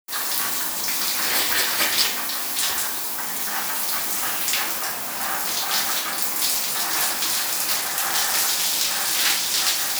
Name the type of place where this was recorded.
restroom